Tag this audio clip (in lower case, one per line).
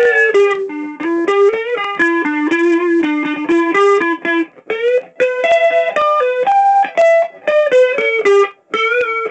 plucked string instrument
musical instrument
guitar
music